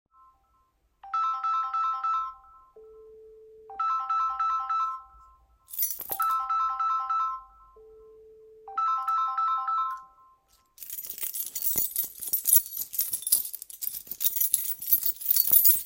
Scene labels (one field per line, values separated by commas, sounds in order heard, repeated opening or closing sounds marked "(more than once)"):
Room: living room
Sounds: phone ringing, keys